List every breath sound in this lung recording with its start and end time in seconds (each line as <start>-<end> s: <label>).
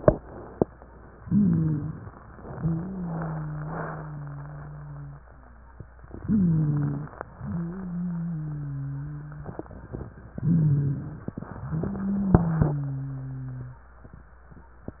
1.20-2.01 s: inhalation
1.20-2.01 s: wheeze
2.54-5.29 s: wheeze
6.24-7.14 s: inhalation
6.24-7.14 s: wheeze
7.40-9.70 s: wheeze
10.40-11.20 s: inhalation
10.40-11.20 s: wheeze
11.57-13.87 s: wheeze